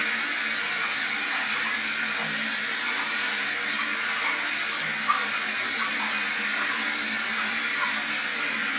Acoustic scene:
restroom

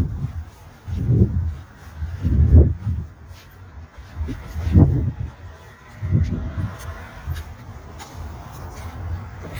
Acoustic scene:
residential area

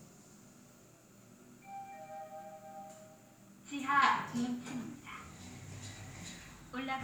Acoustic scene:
elevator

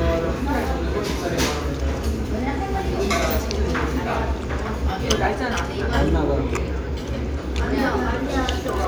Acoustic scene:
restaurant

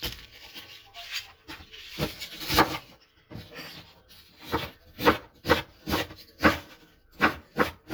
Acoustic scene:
kitchen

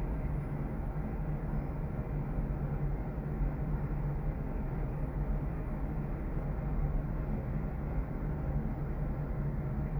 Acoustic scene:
elevator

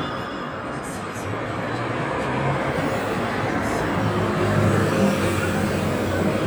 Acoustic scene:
street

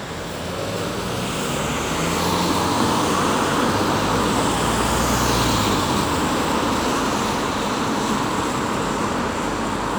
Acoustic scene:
street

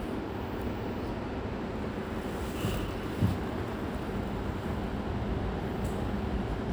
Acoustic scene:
subway station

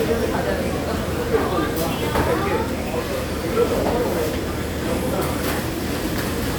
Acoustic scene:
restaurant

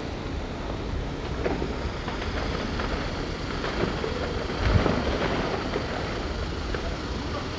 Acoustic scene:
residential area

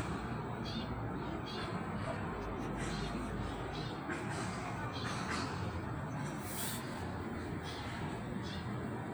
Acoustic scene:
park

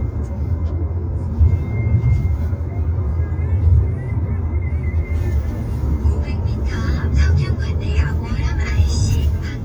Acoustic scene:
car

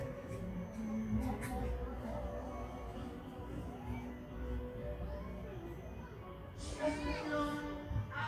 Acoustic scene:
park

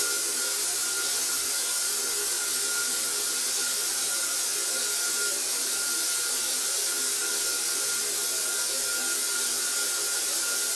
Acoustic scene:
restroom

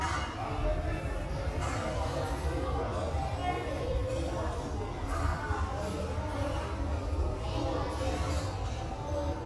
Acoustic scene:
restaurant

